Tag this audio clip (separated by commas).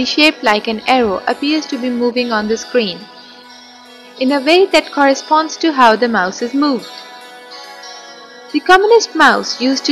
Music, Speech